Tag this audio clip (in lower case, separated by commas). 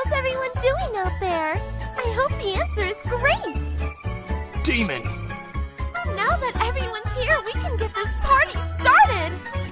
speech, music